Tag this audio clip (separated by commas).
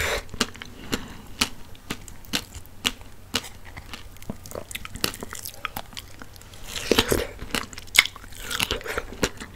people slurping